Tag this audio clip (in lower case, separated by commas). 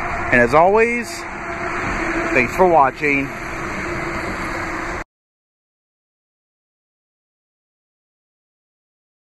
car, vehicle, speech